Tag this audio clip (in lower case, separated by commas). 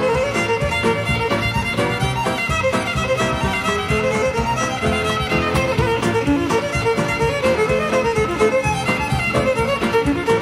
fiddle, music, musical instrument